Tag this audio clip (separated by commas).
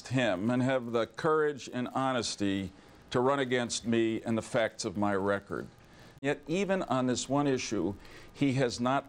Speech